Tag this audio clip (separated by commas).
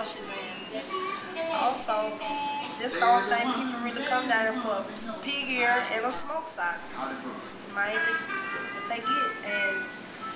Speech, Music